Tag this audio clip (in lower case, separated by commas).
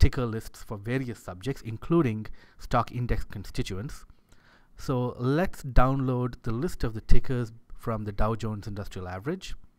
speech